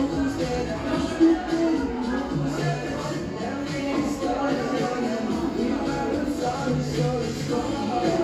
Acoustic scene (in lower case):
cafe